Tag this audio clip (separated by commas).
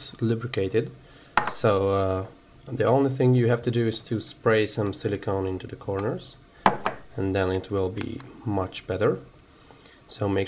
Speech